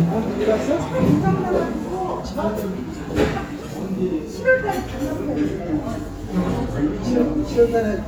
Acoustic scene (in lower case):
restaurant